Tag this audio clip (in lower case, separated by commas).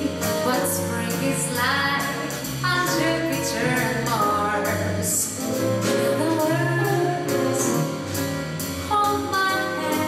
jazz, music